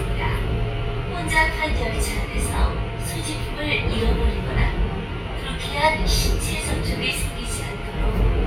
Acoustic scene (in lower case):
subway train